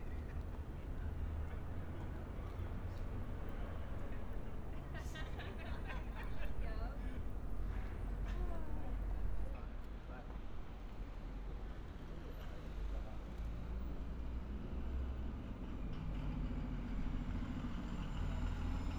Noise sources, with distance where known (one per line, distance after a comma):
unidentified human voice